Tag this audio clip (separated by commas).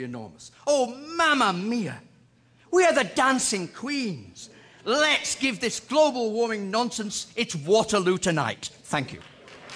Speech, Applause